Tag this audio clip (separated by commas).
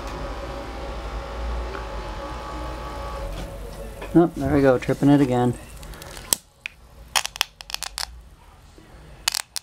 Speech, inside a small room